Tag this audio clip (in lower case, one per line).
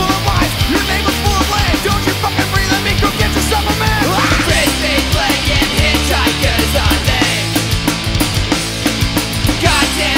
punk rock
music